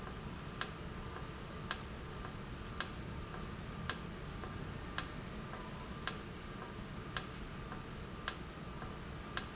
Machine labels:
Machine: valve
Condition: normal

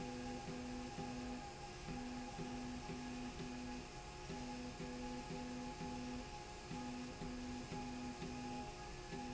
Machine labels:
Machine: slide rail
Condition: normal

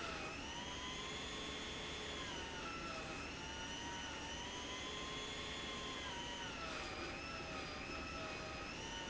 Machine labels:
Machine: pump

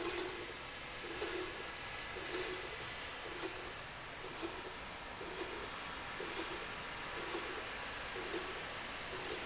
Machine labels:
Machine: slide rail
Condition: normal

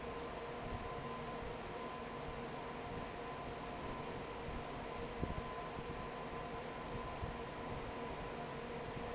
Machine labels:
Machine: fan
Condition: normal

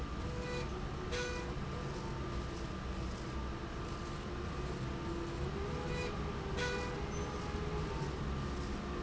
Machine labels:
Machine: slide rail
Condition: normal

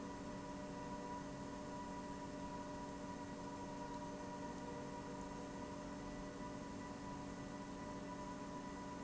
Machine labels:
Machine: pump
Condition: normal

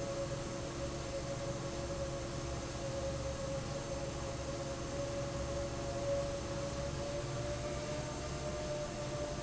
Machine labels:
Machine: fan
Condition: normal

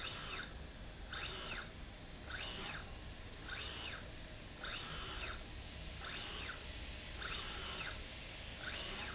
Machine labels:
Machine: slide rail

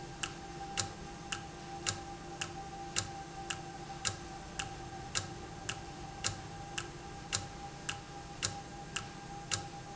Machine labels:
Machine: valve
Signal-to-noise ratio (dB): 0 dB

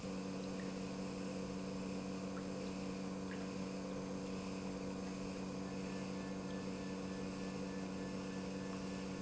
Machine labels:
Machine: pump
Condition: normal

